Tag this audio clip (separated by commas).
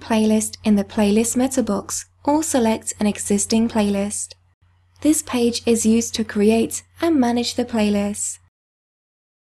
Narration